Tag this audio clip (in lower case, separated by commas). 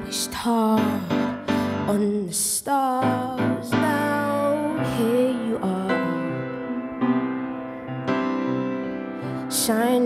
music, singing, piano